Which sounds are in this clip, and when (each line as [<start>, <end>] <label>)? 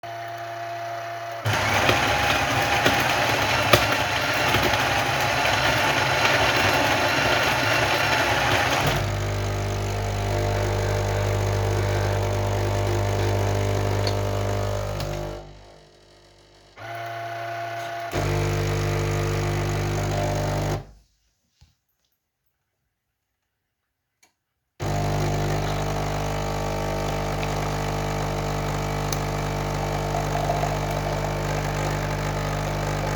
[0.03, 20.93] coffee machine
[24.64, 33.15] coffee machine